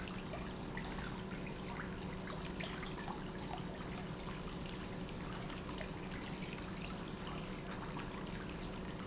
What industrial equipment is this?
pump